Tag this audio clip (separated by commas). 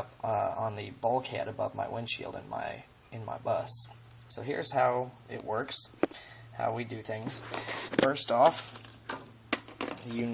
Speech